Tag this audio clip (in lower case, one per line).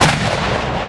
explosion